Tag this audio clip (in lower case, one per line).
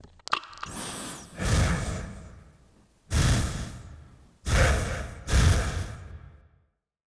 respiratory sounds
breathing